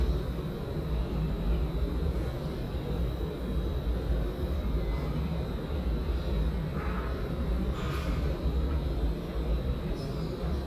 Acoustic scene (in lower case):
subway station